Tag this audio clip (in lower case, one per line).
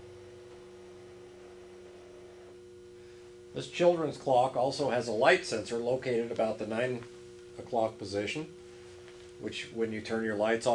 speech